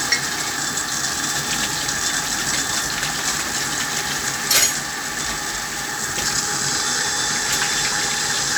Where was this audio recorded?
in a kitchen